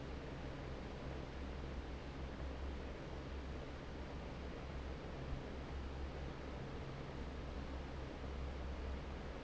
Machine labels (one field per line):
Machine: fan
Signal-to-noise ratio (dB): 6 dB